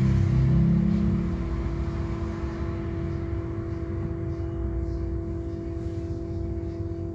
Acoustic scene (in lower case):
bus